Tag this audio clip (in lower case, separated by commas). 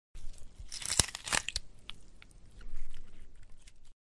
tearing